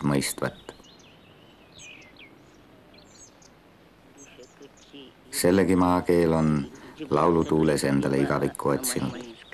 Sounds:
speech

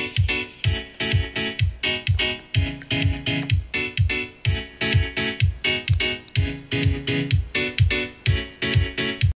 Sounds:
music

